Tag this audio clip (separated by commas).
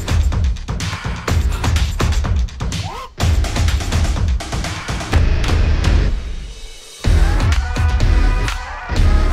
Music